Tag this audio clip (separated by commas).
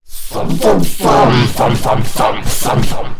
Human voice, Speech